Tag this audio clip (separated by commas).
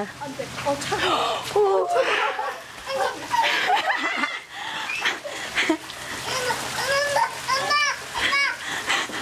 Speech, kid speaking